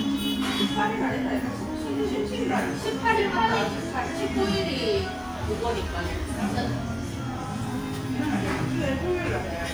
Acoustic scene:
restaurant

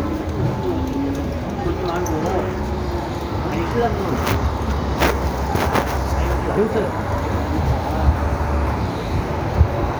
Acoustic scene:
street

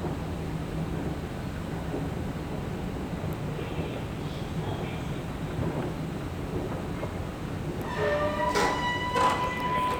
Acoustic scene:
subway station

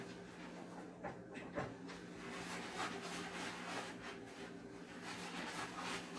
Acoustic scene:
kitchen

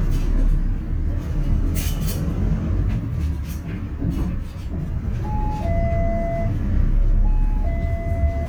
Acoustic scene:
bus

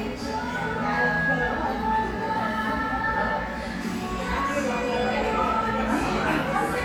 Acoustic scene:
crowded indoor space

